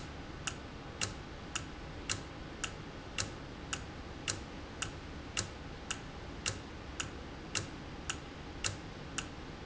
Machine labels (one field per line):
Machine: valve